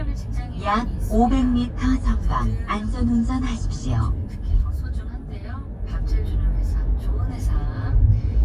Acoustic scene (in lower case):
car